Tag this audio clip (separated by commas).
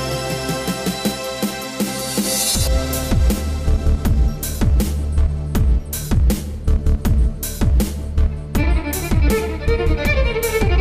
fiddle, Bowed string instrument